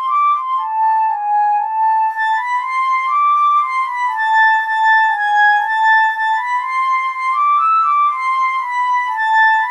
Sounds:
Flute, Music

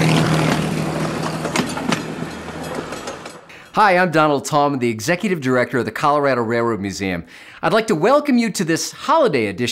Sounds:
Speech

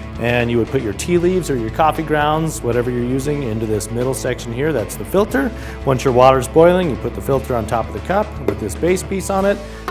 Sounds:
Music, Speech

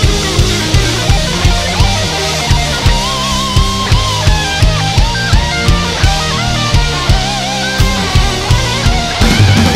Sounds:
Hi-hat, Snare drum, Percussion, Drum kit, Music, Cymbal, Heavy metal, Drum, Musical instrument, Bass drum

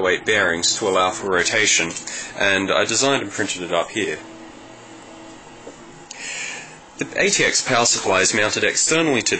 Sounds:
Speech

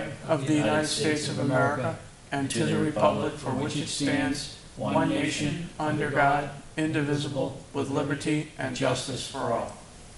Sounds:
Speech

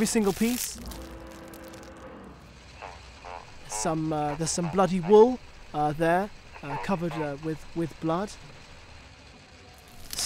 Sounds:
Speech, Music

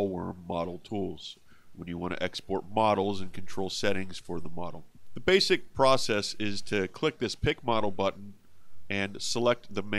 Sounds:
Speech

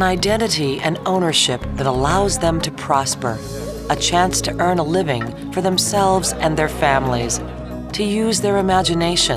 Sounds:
Music, Speech

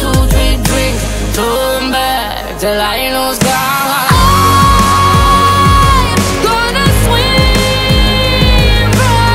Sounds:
Music, Soundtrack music

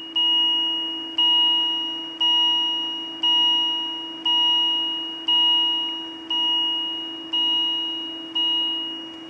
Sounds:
Alarm

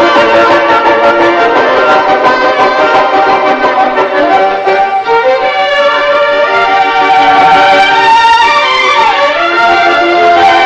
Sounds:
Musical instrument, Violin, Music

